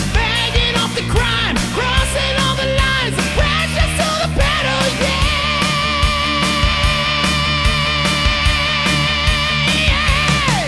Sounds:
Music

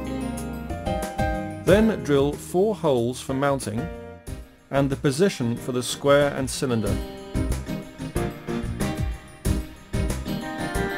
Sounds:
Speech, Music

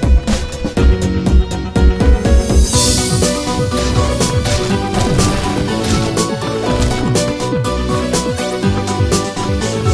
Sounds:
Music

